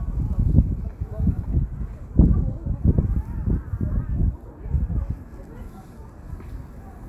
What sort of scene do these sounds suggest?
residential area